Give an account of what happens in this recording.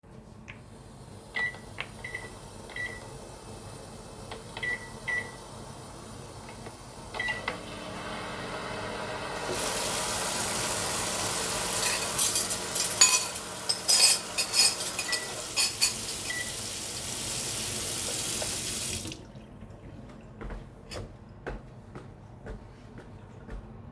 I turn on the microwave and turn on the water to wash the cutlery, then the microwave ends and I walk to the other room.